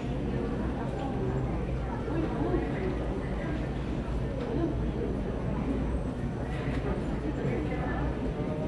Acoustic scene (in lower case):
crowded indoor space